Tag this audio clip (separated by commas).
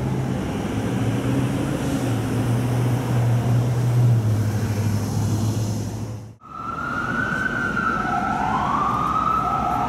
police car (siren)